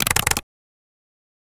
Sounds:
Typing, home sounds, Computer keyboard

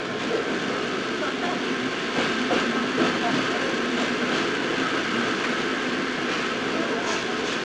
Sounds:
Vehicle, Rail transport, Train

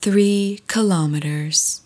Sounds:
Female speech, Speech, Human voice

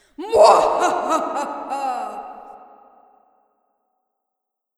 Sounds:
Laughter, Human voice

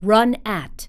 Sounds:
Human voice, Speech, woman speaking

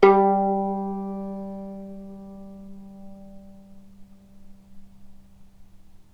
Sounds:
Bowed string instrument, Musical instrument, Music

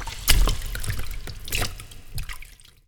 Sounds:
Liquid, splatter, Water

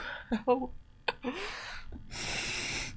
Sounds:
Human voice, Laughter

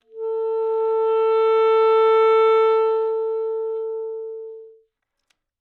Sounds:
woodwind instrument, Musical instrument, Music

